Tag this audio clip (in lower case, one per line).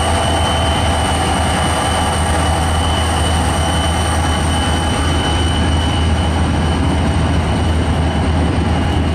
train
rail transport